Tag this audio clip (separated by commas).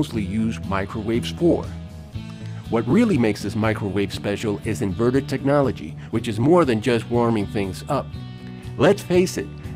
Speech, Music